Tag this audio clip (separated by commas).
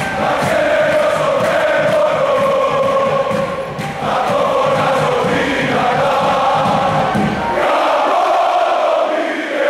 Cheering, people cheering